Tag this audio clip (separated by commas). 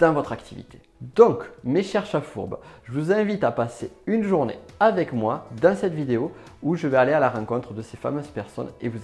Speech